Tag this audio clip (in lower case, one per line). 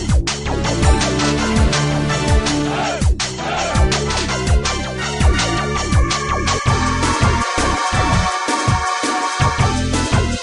music